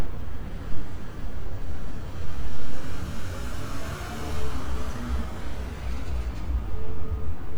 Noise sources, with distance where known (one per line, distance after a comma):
engine of unclear size